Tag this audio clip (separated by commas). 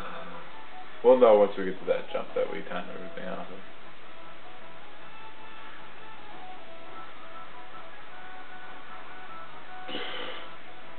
Music, Speech